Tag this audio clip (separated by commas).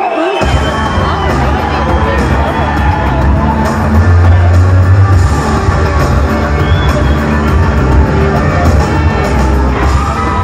Speech, Music, inside a large room or hall